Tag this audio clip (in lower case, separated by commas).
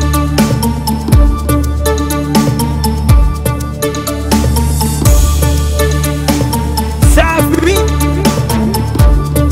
music, afrobeat